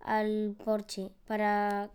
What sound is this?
speech